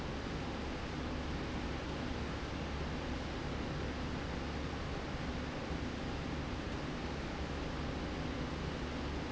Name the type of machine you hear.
slide rail